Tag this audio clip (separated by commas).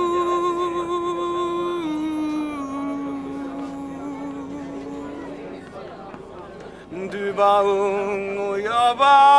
Speech